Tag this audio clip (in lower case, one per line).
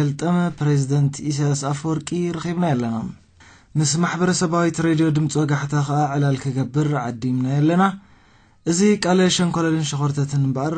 speech